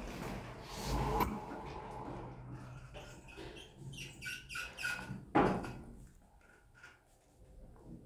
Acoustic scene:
elevator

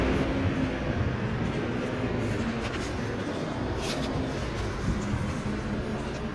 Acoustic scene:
street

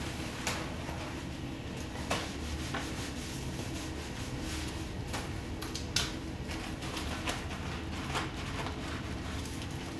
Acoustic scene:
restroom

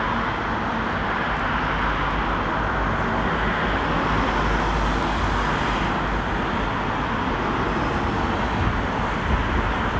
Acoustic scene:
street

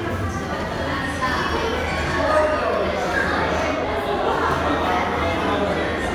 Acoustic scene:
crowded indoor space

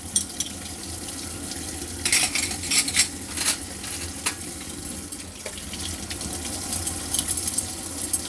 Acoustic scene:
kitchen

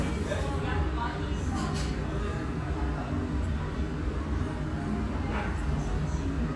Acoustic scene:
restaurant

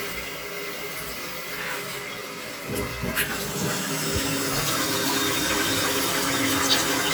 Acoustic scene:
restroom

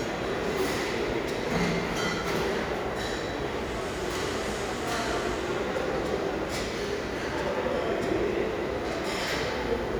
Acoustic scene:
restaurant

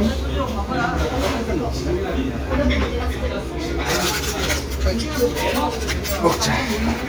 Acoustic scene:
restaurant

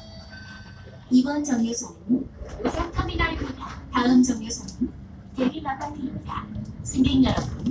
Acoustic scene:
bus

